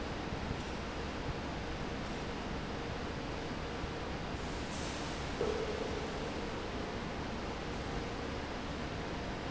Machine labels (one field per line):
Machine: fan